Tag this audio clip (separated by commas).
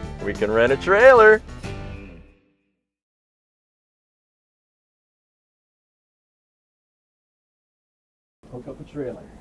Music, Speech, inside a small room